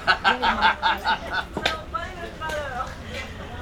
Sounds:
Human voice, Laughter

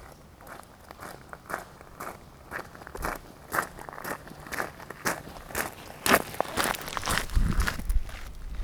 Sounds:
footsteps

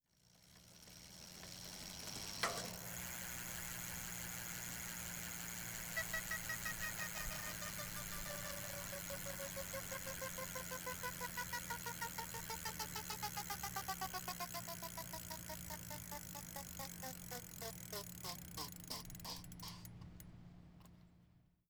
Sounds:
Vehicle, Bicycle

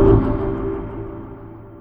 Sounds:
Musical instrument, Music, Keyboard (musical), Organ

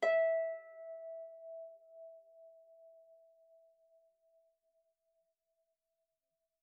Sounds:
Harp, Musical instrument, Music

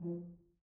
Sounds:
Music, Musical instrument, Brass instrument

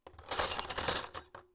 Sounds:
silverware, home sounds

